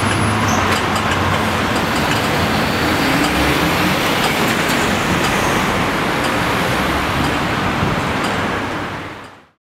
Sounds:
Vehicle

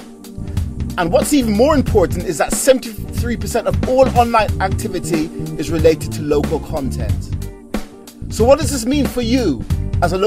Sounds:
Speech, Music

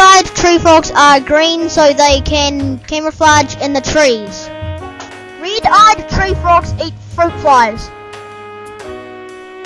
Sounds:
Music, Speech

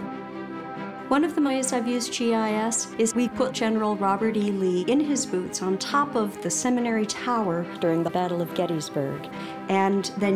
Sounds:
Music, Speech

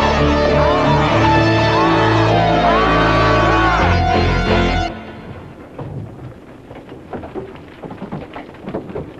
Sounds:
Vehicle, Music

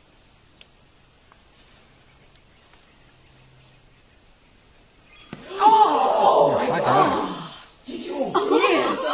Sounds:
Animal

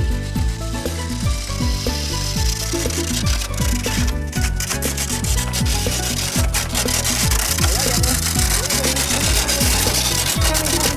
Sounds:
Speech, Music

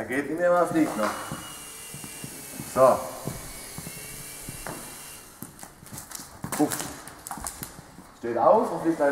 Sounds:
Speech

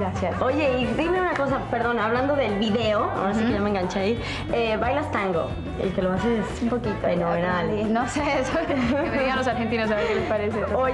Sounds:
Music, Speech

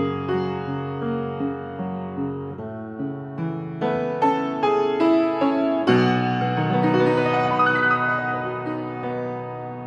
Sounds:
Music, New-age music

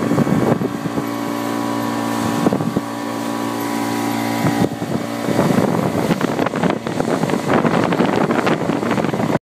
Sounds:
Vehicle, Motorboat

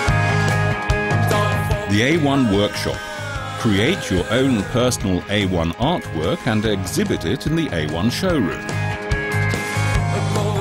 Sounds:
Speech, Music

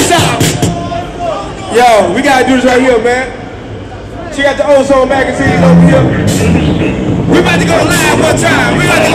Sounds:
Speech, Music

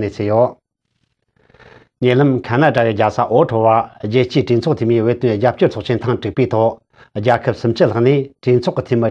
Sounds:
Speech

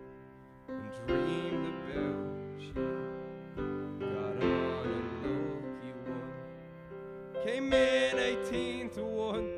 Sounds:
Music

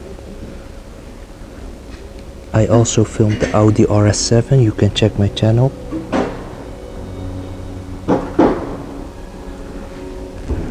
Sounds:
Speech, inside a large room or hall, Music

